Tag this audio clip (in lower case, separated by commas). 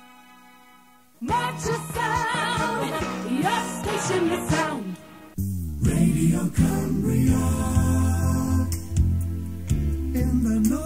rhythm and blues, music